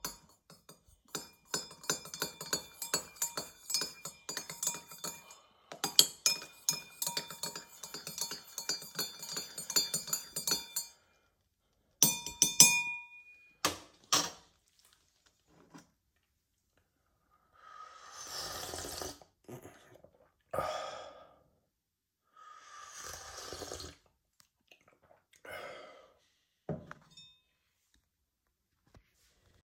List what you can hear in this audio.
cutlery and dishes